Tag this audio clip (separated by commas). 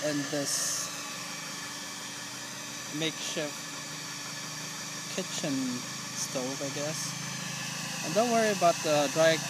Speech, outside, rural or natural, Steam